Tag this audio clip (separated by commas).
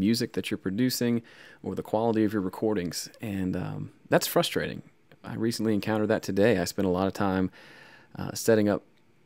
Speech